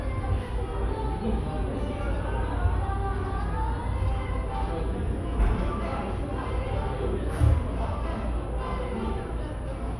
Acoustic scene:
cafe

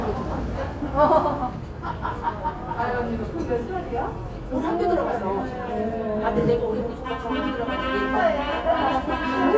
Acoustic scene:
subway station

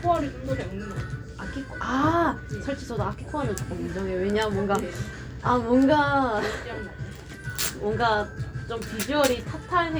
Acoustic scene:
cafe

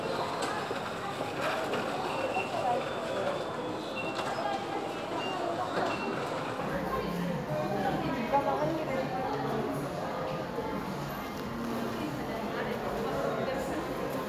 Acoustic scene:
crowded indoor space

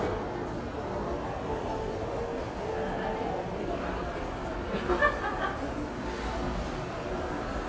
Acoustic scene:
crowded indoor space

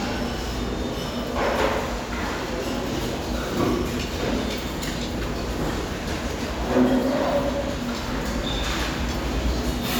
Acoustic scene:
restaurant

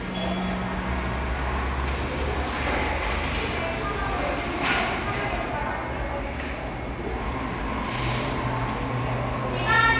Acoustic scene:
cafe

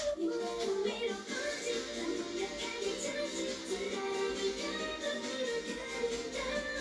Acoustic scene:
cafe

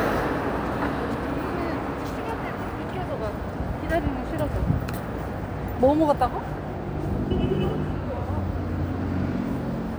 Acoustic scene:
residential area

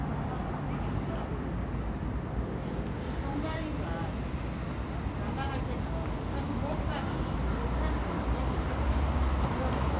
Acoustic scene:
street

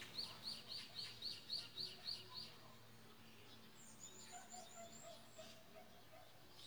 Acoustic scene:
park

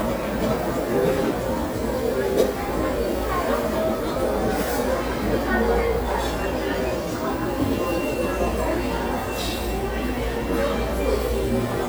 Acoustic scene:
restaurant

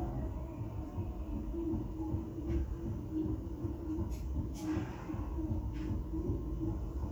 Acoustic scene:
residential area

